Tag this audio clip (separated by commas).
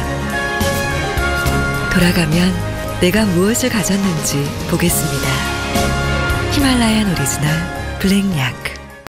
Music, Speech